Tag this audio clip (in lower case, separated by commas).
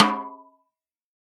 music, drum, musical instrument, percussion, snare drum